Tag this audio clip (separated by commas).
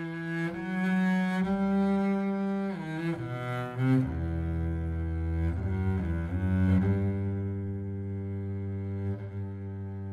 playing double bass